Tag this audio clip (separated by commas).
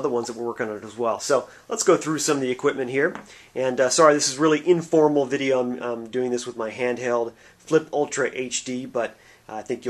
Speech